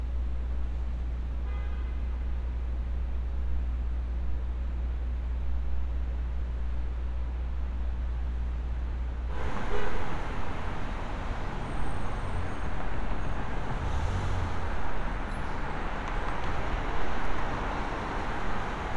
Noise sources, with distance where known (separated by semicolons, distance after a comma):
engine of unclear size; car horn